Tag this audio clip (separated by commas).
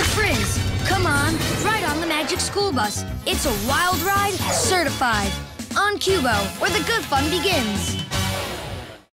Speech, Music